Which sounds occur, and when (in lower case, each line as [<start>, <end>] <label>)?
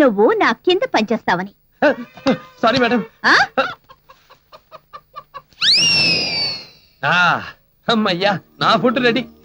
[0.00, 1.47] woman speaking
[0.00, 9.44] background noise
[1.74, 3.11] music
[1.79, 3.21] man speaking
[3.22, 3.51] woman speaking
[3.54, 3.90] cluck
[4.06, 4.33] cluck
[4.49, 5.42] cluck
[5.55, 7.02] sound effect
[6.98, 7.60] man speaking
[7.80, 9.44] music
[7.83, 8.37] man speaking
[8.58, 9.25] man speaking